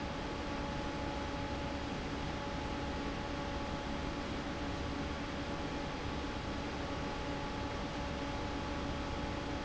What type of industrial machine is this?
fan